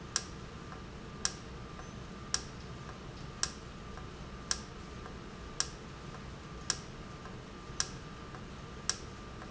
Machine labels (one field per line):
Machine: valve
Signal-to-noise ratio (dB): 0 dB